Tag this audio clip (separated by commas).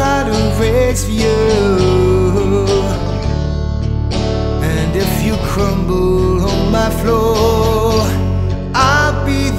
Music